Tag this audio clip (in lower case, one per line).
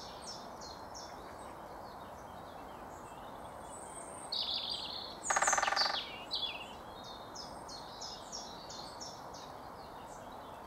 woodpecker pecking tree